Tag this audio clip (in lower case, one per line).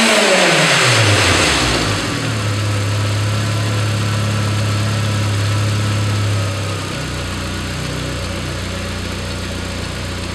engine
vroom
vehicle
idling
car
medium engine (mid frequency)